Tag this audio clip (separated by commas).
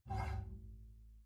Musical instrument, Bowed string instrument, Music